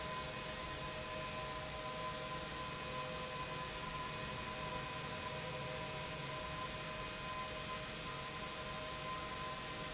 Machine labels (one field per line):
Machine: pump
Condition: abnormal